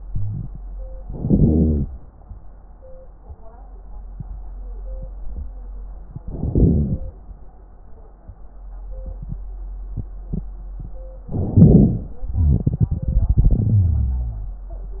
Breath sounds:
0.05-0.47 s: wheeze
1.01-1.96 s: inhalation
6.29-7.13 s: inhalation
11.30-12.16 s: inhalation
11.30-12.16 s: crackles
12.22-15.00 s: exhalation
13.77-15.00 s: wheeze

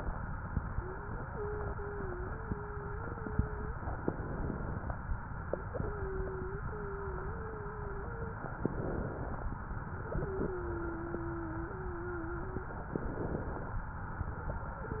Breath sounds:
0.68-3.82 s: wheeze
3.98-4.91 s: inhalation
5.76-8.52 s: wheeze
8.52-9.45 s: inhalation
9.98-12.82 s: wheeze
12.88-13.81 s: inhalation
14.80-15.00 s: wheeze

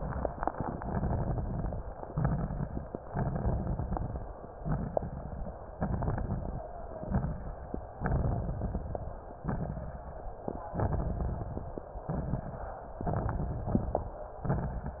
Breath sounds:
0.72-1.84 s: inhalation
0.72-1.84 s: crackles
2.07-2.98 s: exhalation
2.07-2.98 s: crackles
3.09-4.33 s: inhalation
3.09-4.33 s: crackles
4.61-5.71 s: exhalation
4.61-5.71 s: crackles
5.79-6.66 s: inhalation
5.79-6.66 s: crackles
6.93-7.71 s: exhalation
6.93-7.71 s: crackles
7.99-9.11 s: inhalation
7.99-9.11 s: crackles
9.47-10.25 s: exhalation
9.47-10.25 s: crackles
10.76-11.88 s: inhalation
10.76-11.88 s: crackles
12.03-12.81 s: exhalation
12.03-12.81 s: crackles
12.98-14.10 s: inhalation
12.98-14.10 s: crackles
14.50-15.00 s: exhalation
14.50-15.00 s: crackles

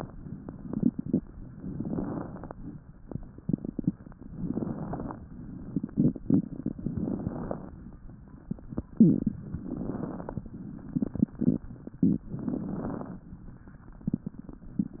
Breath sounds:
1.80-2.54 s: inhalation
1.80-2.54 s: crackles
4.40-5.14 s: inhalation
4.40-5.14 s: crackles
6.93-7.67 s: inhalation
6.93-7.67 s: crackles
9.68-10.42 s: inhalation
9.68-10.42 s: crackles
12.41-13.15 s: inhalation
12.41-13.15 s: crackles

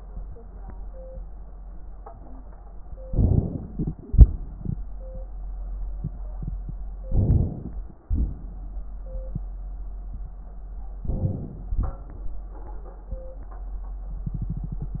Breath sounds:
2.98-4.01 s: crackles
3.00-4.03 s: inhalation
4.06-4.80 s: exhalation
4.06-4.83 s: crackles
7.03-7.80 s: crackles
7.04-7.79 s: inhalation
7.99-9.28 s: crackles
8.03-9.30 s: exhalation
10.98-11.76 s: crackles
11.00-11.78 s: inhalation
11.82-12.49 s: exhalation
11.82-12.49 s: crackles

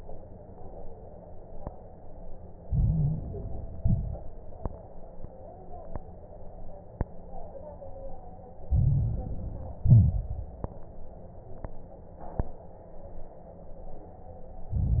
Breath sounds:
2.62-3.78 s: inhalation
2.62-3.78 s: crackles
3.78-4.29 s: exhalation
3.78-4.29 s: crackles
8.68-9.84 s: inhalation
8.68-9.84 s: crackles
9.86-10.58 s: exhalation
9.86-10.58 s: crackles
14.73-15.00 s: inhalation
14.73-15.00 s: crackles

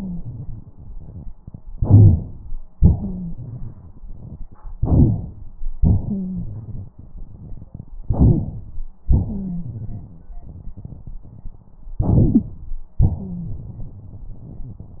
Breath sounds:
1.76-2.58 s: inhalation
2.75-4.50 s: exhalation
2.99-3.33 s: wheeze
4.77-5.34 s: inhalation
5.78-7.88 s: exhalation
6.07-6.46 s: wheeze
8.04-8.73 s: inhalation
8.27-8.38 s: wheeze
9.06-10.41 s: exhalation
9.25-9.67 s: wheeze
11.98-12.65 s: inhalation
12.23-12.41 s: wheeze
13.16-13.49 s: wheeze

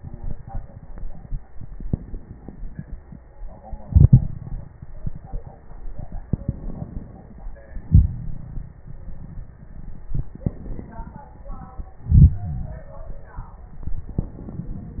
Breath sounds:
1.51-3.17 s: inhalation
1.51-3.17 s: crackles
3.80-4.77 s: exhalation
6.44-7.40 s: inhalation
7.78-8.75 s: exhalation
7.78-8.75 s: crackles
10.39-11.28 s: inhalation
10.39-11.28 s: crackles
12.04-13.33 s: exhalation
12.38-13.33 s: wheeze
14.17-15.00 s: inhalation

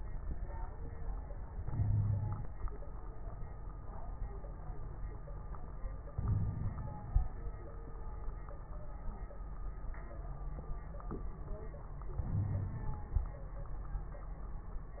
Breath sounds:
1.58-2.44 s: inhalation
1.70-2.44 s: wheeze
6.15-7.20 s: inhalation
6.22-6.73 s: wheeze
12.22-13.01 s: inhalation
12.33-12.79 s: wheeze

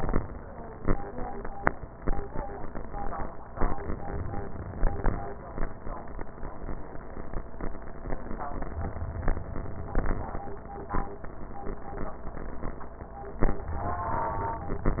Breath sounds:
3.54-5.04 s: inhalation
8.73-10.10 s: inhalation
13.53-14.89 s: inhalation

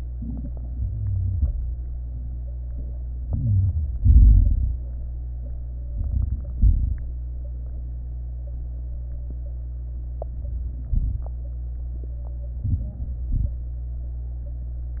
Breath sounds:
0.10-0.72 s: inhalation
0.10-0.72 s: crackles
0.72-1.47 s: exhalation
0.72-1.47 s: crackles
3.27-3.98 s: inhalation
3.27-3.98 s: crackles
4.00-4.76 s: exhalation
4.00-4.76 s: crackles
5.90-6.57 s: crackles
5.91-6.58 s: inhalation
6.56-7.23 s: exhalation
6.58-7.21 s: crackles
10.18-10.92 s: inhalation
10.18-10.92 s: crackles
10.93-11.34 s: exhalation
10.93-11.34 s: crackles
12.65-13.24 s: inhalation
12.65-13.24 s: crackles
13.31-13.74 s: exhalation
13.31-13.74 s: crackles

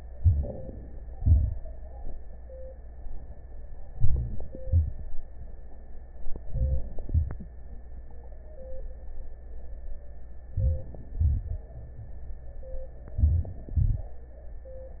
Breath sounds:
0.13-1.16 s: inhalation
1.14-2.16 s: exhalation
3.87-4.64 s: inhalation
4.63-5.11 s: exhalation
6.42-7.10 s: inhalation
7.09-7.77 s: exhalation
10.54-11.16 s: inhalation
11.18-11.80 s: exhalation
13.20-13.75 s: inhalation
13.78-14.34 s: exhalation

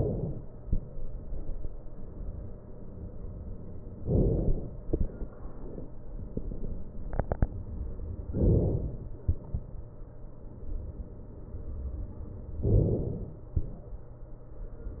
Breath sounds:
4.05-4.86 s: inhalation
8.43-9.23 s: inhalation
12.69-13.50 s: inhalation

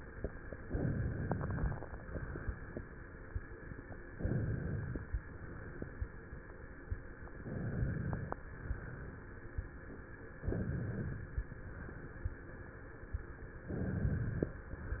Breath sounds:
0.64-1.82 s: inhalation
4.08-5.14 s: inhalation
7.33-8.39 s: inhalation
10.43-11.49 s: inhalation
13.68-14.60 s: inhalation

